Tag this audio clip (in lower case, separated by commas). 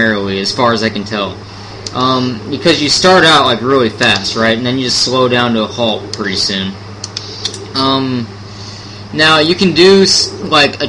speech